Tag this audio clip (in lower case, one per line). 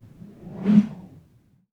whoosh